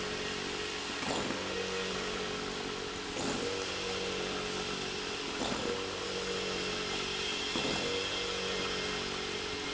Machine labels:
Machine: pump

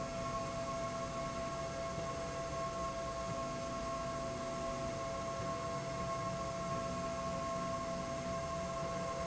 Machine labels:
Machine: slide rail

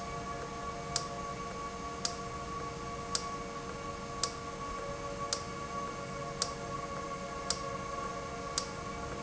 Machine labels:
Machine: valve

